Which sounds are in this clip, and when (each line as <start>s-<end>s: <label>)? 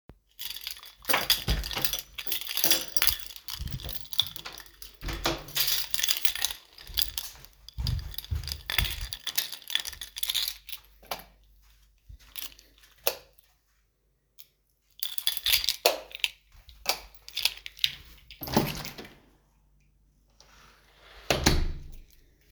0.0s-10.9s: keys
1.4s-2.1s: door
5.0s-5.6s: door
7.5s-9.5s: footsteps
11.0s-11.3s: light switch
12.3s-12.7s: keys
13.0s-13.3s: light switch
14.3s-16.4s: keys
15.8s-16.1s: light switch
16.7s-17.2s: light switch
17.2s-18.2s: keys
18.2s-19.4s: door
21.1s-22.1s: door